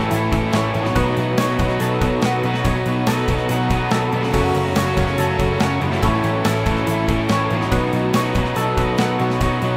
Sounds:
music

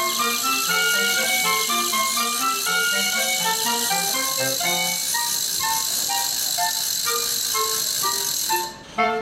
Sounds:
clarinet
music

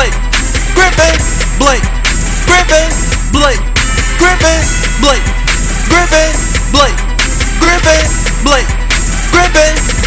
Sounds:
music

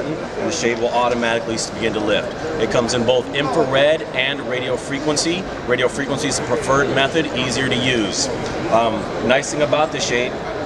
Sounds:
speech

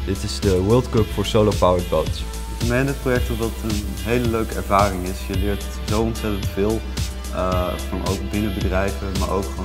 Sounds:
speech
music

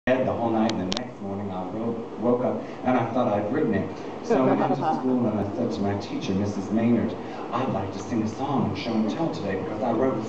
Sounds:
inside a large room or hall
speech

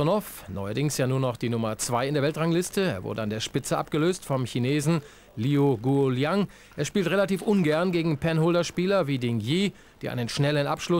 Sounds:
speech

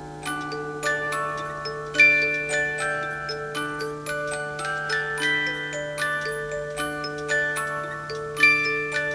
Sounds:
music
clock

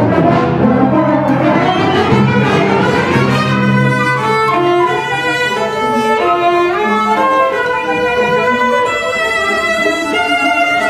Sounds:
cello
bowed string instrument
orchestra
fiddle

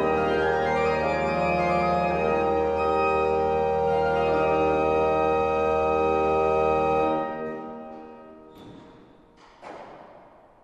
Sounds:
music
musical instrument

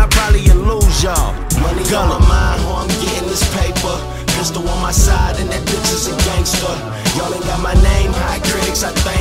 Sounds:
music
rapping

